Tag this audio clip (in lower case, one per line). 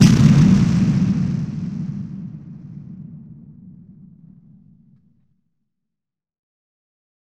boom
explosion